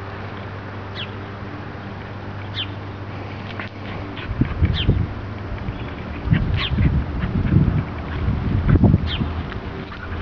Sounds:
Animal, Domestic animals, Dog

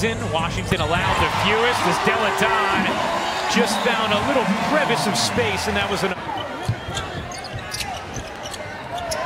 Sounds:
basketball bounce

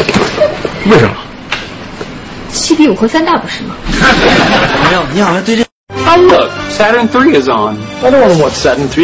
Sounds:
Speech, Music

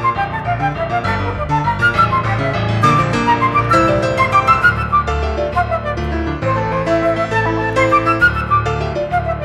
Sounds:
playing flute

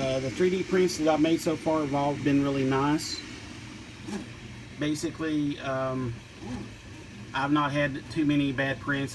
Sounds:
Speech

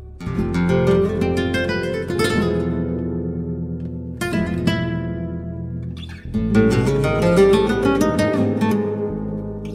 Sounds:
Guitar, Plucked string instrument, Music, Strum, Musical instrument

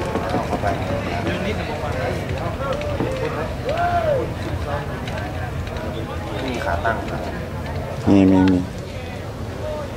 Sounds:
Speech

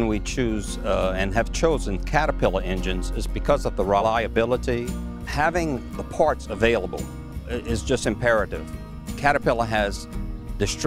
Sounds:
Music, Speech

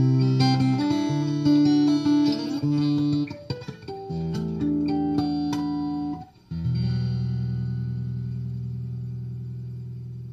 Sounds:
Electric guitar, Guitar, Musical instrument, Music, Plucked string instrument

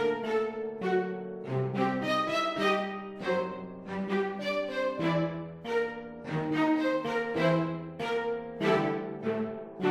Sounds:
Music

